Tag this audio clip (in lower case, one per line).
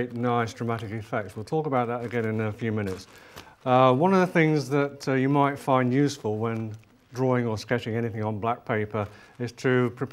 speech